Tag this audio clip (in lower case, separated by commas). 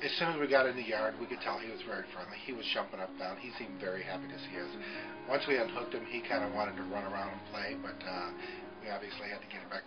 speech, music